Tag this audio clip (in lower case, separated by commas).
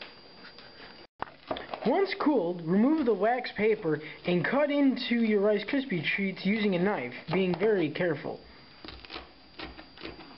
speech, inside a small room